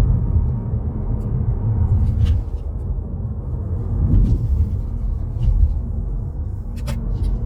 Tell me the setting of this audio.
car